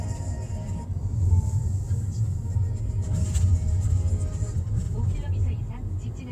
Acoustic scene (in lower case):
car